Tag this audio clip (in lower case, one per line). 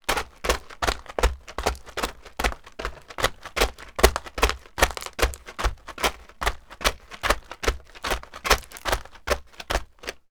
run